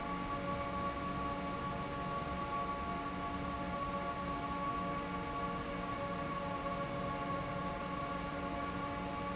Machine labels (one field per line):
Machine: fan